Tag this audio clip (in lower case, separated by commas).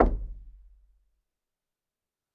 home sounds, door, knock